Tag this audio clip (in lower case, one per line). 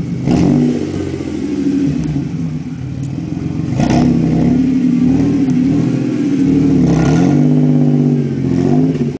vehicle
car
vroom